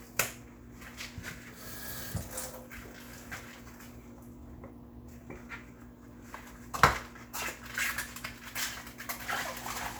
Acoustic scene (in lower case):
kitchen